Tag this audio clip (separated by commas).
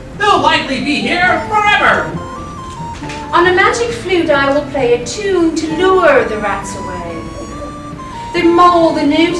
Music, Speech